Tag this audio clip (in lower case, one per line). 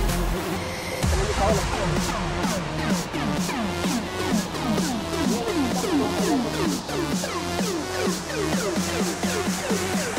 music
speech